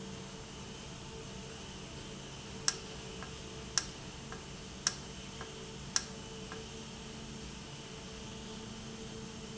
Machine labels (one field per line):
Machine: valve